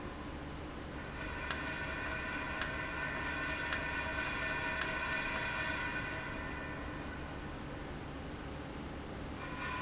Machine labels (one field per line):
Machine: valve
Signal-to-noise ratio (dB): -6 dB